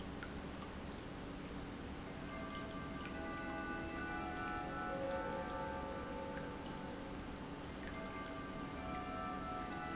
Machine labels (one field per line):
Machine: pump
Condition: normal